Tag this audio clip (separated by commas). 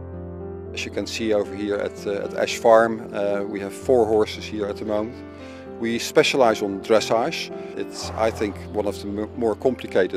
Speech, Music